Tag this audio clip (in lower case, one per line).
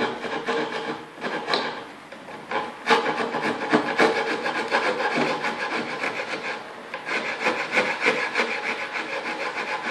rub
filing (rasp)